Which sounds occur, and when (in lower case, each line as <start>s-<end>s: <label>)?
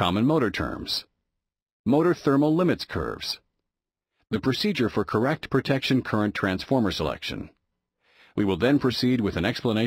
0.0s-1.0s: male speech
1.8s-3.4s: male speech
4.1s-4.2s: breathing
4.3s-7.6s: male speech
8.0s-8.3s: breathing
8.3s-9.8s: male speech